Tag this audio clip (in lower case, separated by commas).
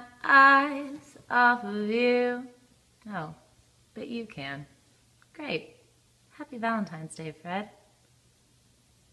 speech